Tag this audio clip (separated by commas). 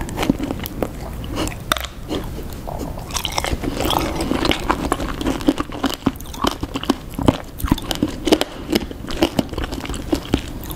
people eating crisps